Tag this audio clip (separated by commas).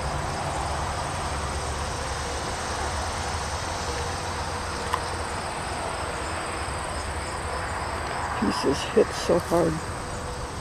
Speech